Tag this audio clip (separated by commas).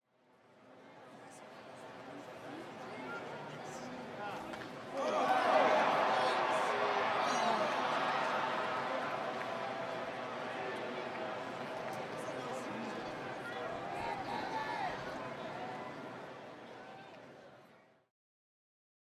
Cheering, Human group actions, Crowd